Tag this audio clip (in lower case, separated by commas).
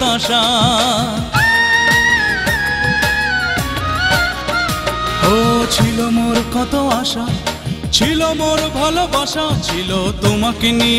singing, music, folk music